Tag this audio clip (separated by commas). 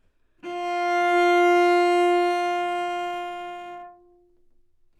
Bowed string instrument, Music, Musical instrument